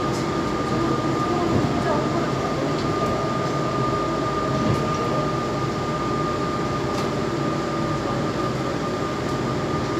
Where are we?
on a subway train